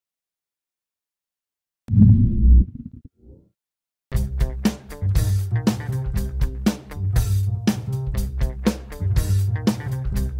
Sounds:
music

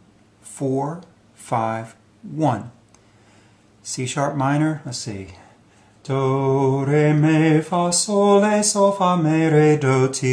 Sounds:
speech

